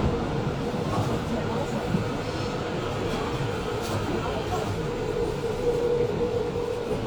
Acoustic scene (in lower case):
subway train